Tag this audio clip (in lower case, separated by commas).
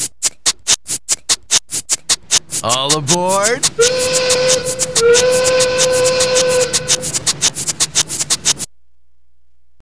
speech